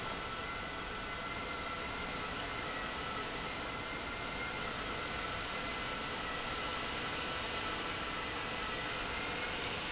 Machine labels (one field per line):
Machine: pump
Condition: normal